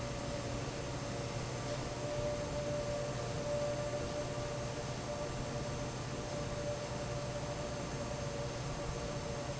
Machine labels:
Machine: fan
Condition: normal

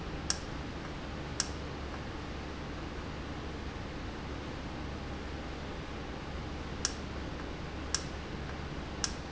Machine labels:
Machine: valve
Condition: normal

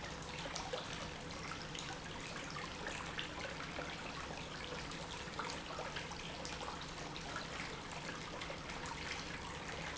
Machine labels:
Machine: pump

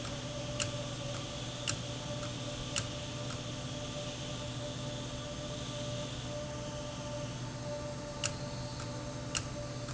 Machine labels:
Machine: valve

